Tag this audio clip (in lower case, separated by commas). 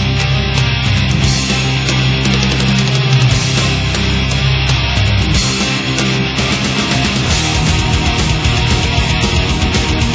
heavy metal, rock music, music, angry music